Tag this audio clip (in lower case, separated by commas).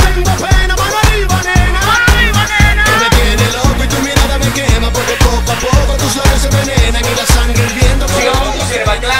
soundtrack music, music, speech